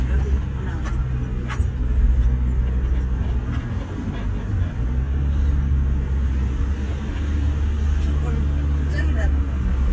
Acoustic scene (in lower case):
car